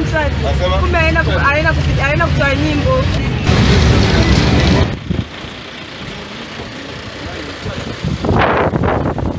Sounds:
outside, rural or natural, Speech

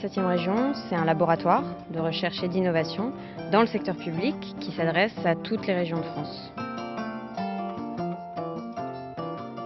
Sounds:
Speech, Music

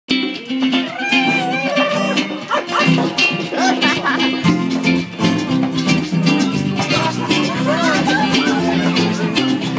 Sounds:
Music, Speech

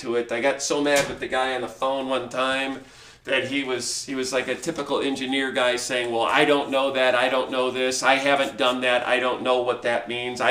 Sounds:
Speech

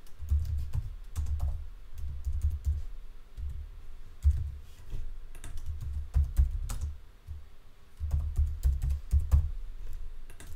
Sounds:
Computer keyboard

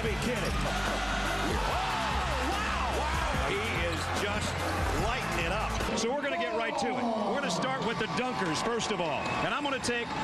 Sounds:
Speech, Music

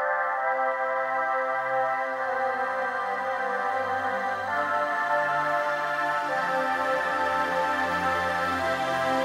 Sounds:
Music, Ambient music

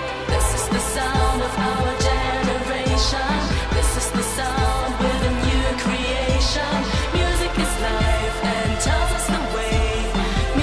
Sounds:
Music

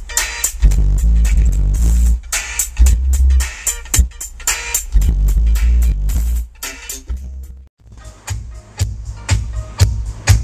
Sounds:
Music

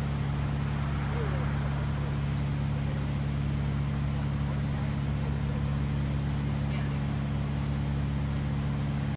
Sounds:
Speech

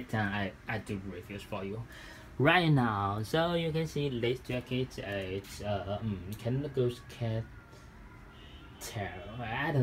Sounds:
Speech

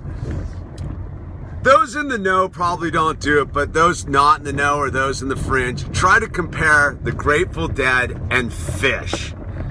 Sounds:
Vehicle, Speech, Car

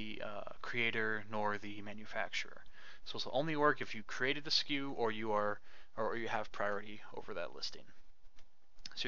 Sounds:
Speech

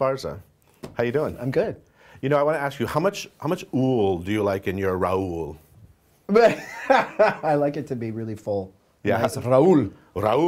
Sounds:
Speech

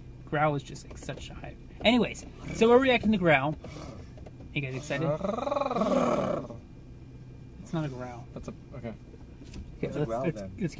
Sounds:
Speech

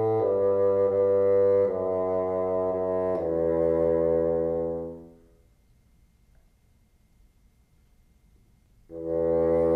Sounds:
playing bassoon

